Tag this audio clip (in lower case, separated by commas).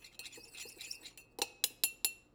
domestic sounds, cutlery, dishes, pots and pans